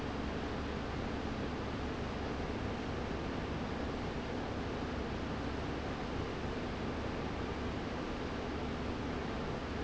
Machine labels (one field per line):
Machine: fan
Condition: abnormal